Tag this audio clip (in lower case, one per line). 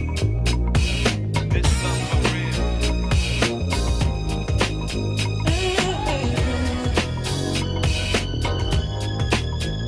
music